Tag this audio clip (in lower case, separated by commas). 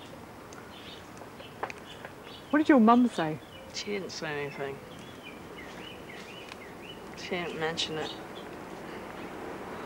speech, outside, rural or natural